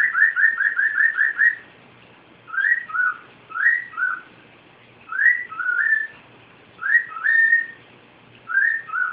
Bird chirping continuously